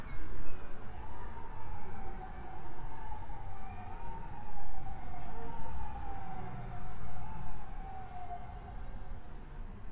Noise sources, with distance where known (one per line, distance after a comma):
siren
person or small group talking